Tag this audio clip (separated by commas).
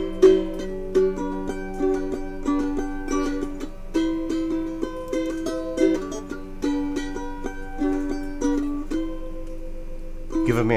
Music, Ukulele